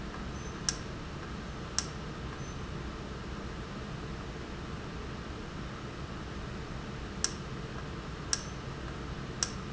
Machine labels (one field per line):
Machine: valve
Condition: normal